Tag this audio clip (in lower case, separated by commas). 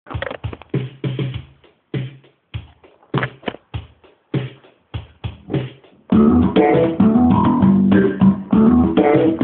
plucked string instrument, guitar, musical instrument, music, bass guitar